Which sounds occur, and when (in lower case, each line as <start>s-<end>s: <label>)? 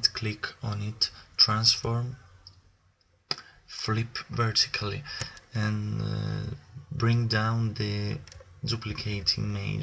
0.0s-1.2s: man speaking
0.0s-9.8s: background noise
1.3s-2.1s: man speaking
1.9s-2.3s: breathing
2.4s-2.5s: tick
3.0s-3.0s: tick
3.3s-3.3s: tick
3.4s-3.6s: breathing
3.7s-5.1s: man speaking
5.0s-5.4s: breathing
5.2s-5.2s: tick
5.3s-5.4s: tick
5.5s-6.6s: man speaking
6.9s-8.2s: man speaking
6.9s-7.0s: tick
8.2s-8.3s: tick
8.6s-9.8s: man speaking